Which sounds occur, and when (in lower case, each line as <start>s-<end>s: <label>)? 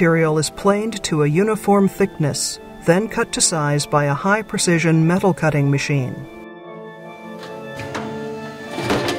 0.0s-2.5s: male speech
0.0s-9.1s: music
2.8s-6.3s: male speech
7.0s-9.1s: mechanisms
7.4s-8.1s: generic impact sounds
8.6s-9.1s: generic impact sounds